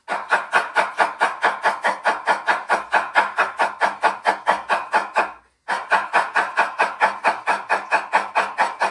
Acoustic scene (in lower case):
kitchen